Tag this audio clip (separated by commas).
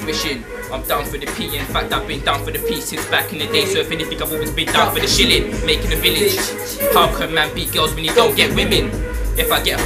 Music